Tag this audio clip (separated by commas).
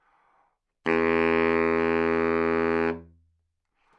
Musical instrument, Music, woodwind instrument